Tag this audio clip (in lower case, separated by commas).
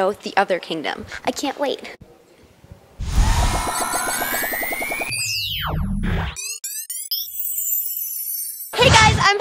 music, speech, boing